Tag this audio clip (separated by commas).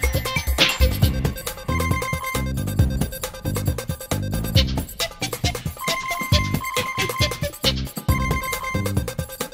Music